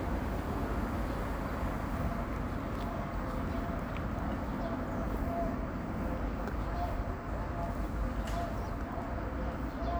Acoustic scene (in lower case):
residential area